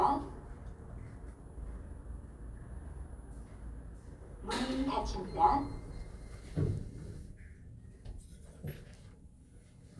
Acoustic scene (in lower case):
elevator